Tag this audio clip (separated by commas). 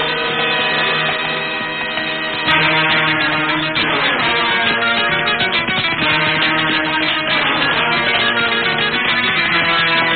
Clip-clop, Animal, Music